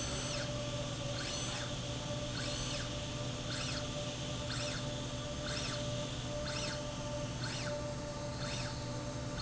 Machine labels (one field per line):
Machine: slide rail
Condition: normal